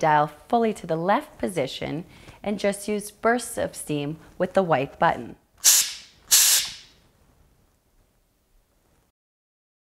A woman speaking, two bursts of steam